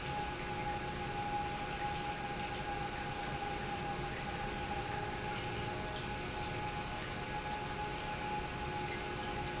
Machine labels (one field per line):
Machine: pump